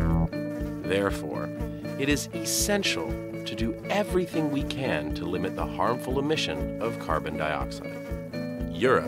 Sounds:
music, speech

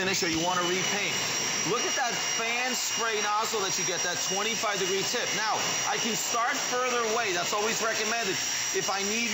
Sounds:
power tool, speech

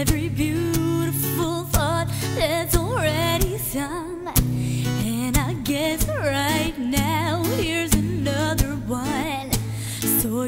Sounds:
music

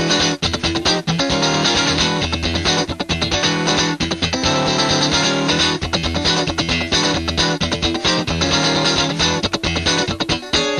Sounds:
plucked string instrument, musical instrument, acoustic guitar, music, guitar, electric guitar, strum

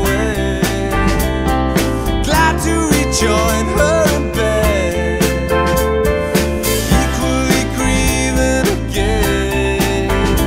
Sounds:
music

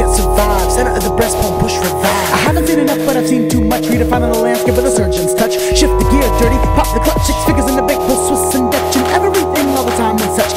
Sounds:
rapping, electronic music, music, electronica

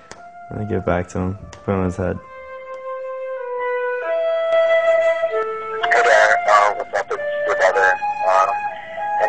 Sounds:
music, speech

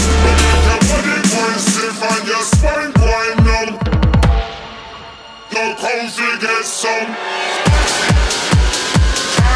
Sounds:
dubstep, music

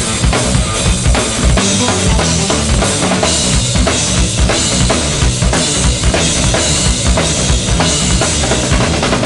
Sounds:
musical instrument, drum, music, drum kit

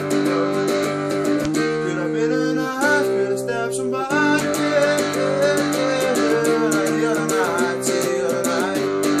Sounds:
slide guitar, music

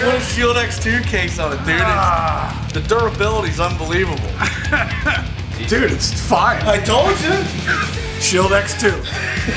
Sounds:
speech, music

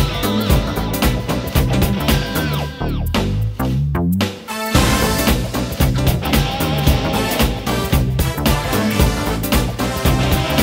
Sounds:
music

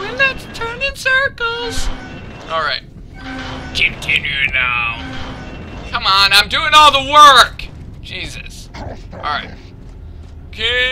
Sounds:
speech

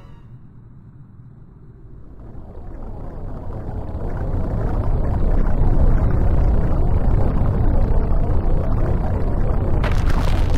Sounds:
inside a large room or hall

